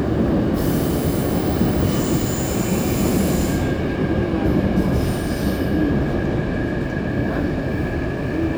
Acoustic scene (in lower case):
subway train